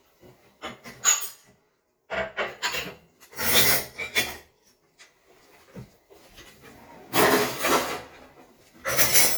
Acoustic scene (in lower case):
kitchen